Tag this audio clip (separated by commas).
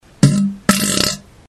Fart